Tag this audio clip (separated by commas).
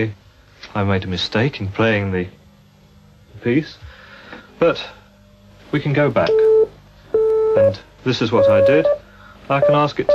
Speech